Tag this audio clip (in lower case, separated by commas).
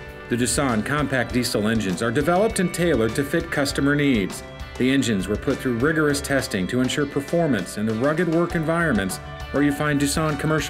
music, speech